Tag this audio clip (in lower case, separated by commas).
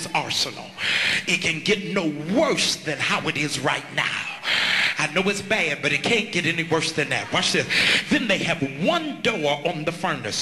speech